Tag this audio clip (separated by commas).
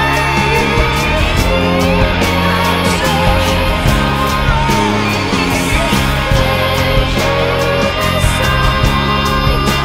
Psychedelic rock, Progressive rock